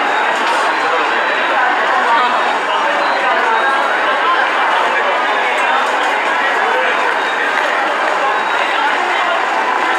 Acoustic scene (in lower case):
subway station